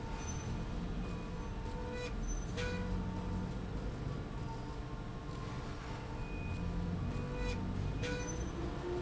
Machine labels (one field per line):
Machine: slide rail